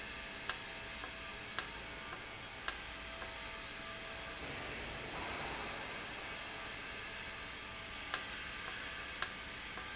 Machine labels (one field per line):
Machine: valve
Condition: normal